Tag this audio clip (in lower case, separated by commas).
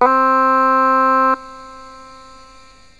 musical instrument, keyboard (musical), music